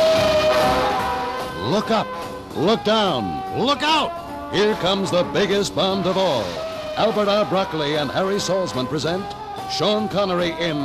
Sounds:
Music, Speech

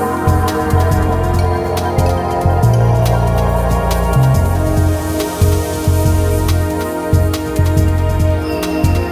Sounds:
Music

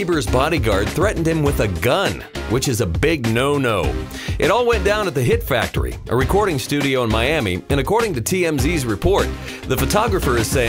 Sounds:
Music, Speech

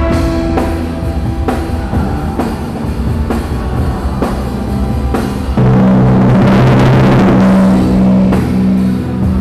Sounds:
playing tympani

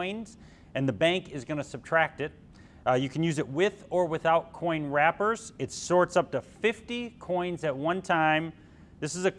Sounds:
Speech

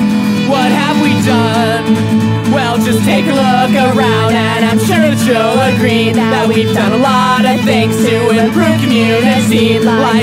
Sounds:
Music

